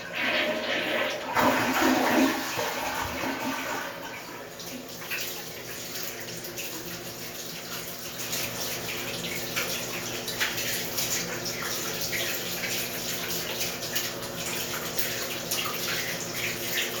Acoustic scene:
restroom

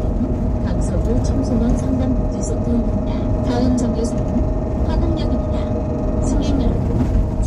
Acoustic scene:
bus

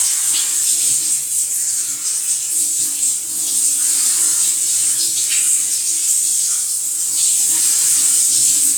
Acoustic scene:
restroom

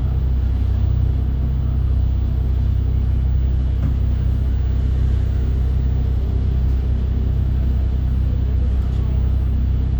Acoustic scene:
bus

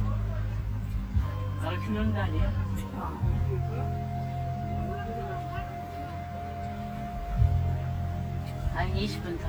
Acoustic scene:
park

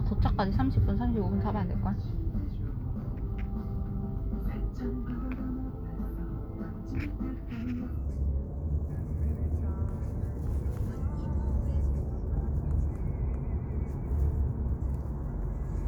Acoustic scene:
car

